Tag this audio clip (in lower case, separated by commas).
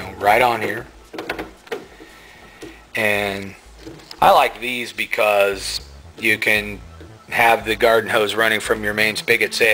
inside a small room, speech, music